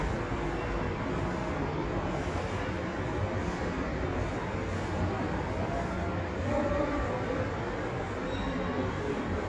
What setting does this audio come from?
subway station